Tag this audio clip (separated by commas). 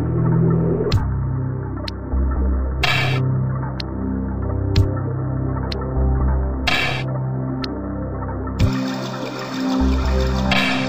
Music, Soundtrack music, Scary music, Theme music